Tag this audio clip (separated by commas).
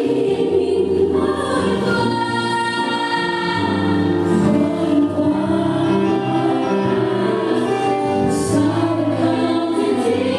Music, Choir